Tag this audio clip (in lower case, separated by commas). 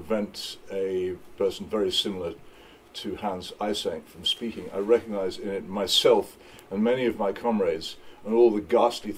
narration, speech, male speech